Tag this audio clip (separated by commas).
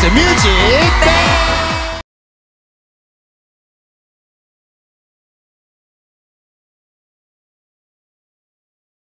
Music